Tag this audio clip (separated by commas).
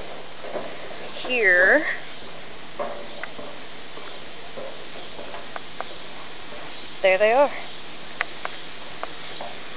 Speech